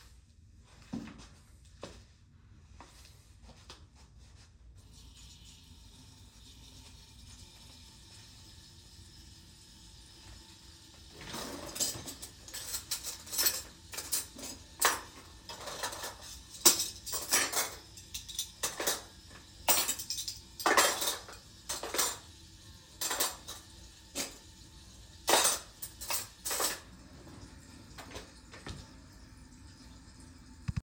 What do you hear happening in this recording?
I started the recording in the kitchen. First I turned on the tap so running water could be heard. While the water was running, I removed and placed back cutlery in to the drawer to create cutlery sounds. Overlapped with the water sound.